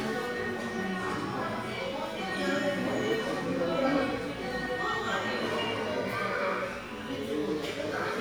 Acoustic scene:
crowded indoor space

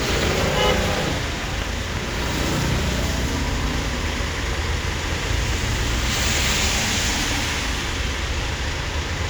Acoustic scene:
street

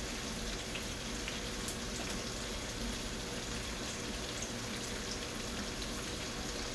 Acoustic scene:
kitchen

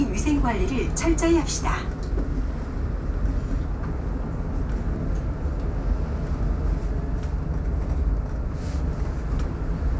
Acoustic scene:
bus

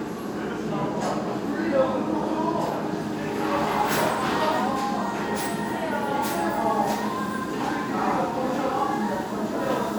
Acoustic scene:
restaurant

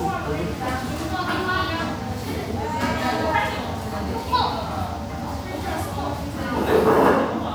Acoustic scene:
cafe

